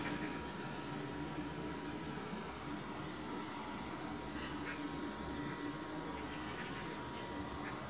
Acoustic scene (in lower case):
park